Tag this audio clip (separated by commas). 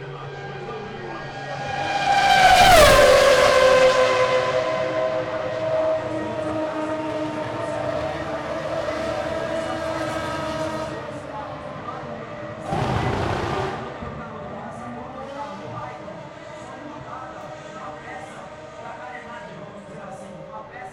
auto racing, Car, Motor vehicle (road), Vehicle